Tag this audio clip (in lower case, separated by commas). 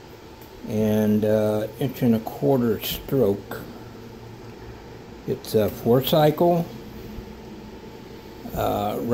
speech